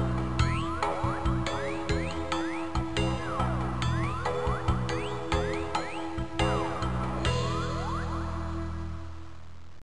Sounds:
music

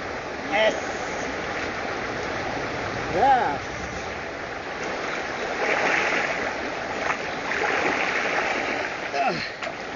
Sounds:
speech

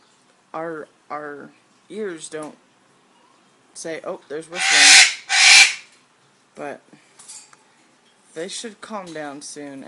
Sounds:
pets
bird
inside a small room
speech

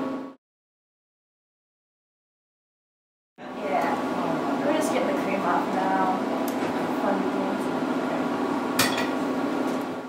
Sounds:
speech
inside a small room

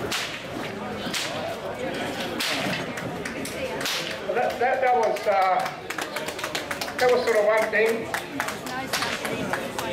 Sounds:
whip

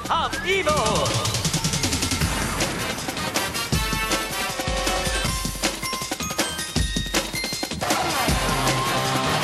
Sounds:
speech
music

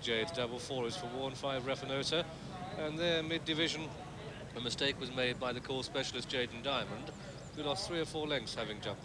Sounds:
speech

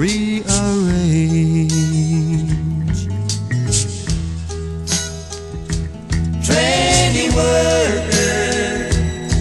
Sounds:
music

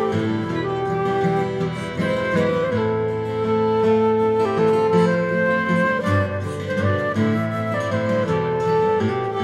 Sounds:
guitar
musical instrument
plucked string instrument
violin
music
strum

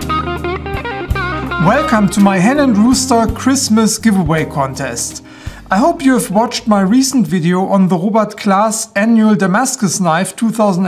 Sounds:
music
speech

